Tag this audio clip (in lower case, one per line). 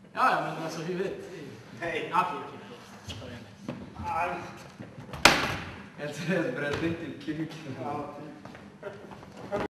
speech
slam